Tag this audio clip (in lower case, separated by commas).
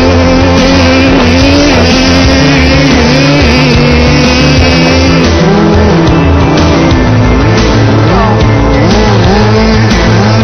car, music